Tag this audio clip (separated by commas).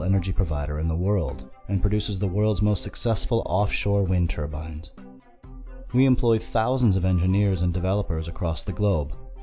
Speech, Music